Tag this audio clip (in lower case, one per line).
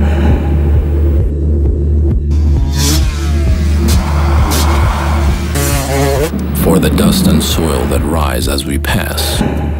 speech
music
motorcycle
vehicle